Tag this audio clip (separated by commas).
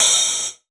Musical instrument, Percussion, Hi-hat, Music, Cymbal